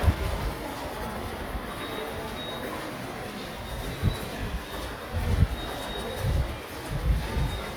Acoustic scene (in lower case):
subway station